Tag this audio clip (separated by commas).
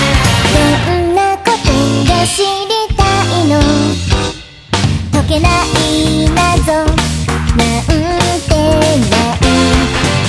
Music